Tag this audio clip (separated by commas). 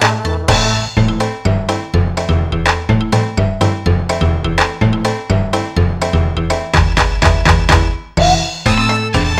Music